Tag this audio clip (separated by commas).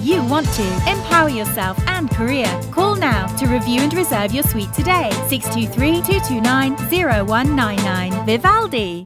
Music, Speech